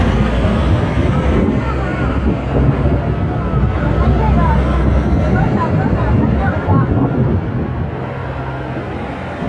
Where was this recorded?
on a street